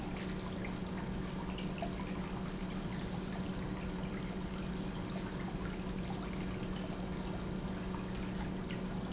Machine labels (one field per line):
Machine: pump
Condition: normal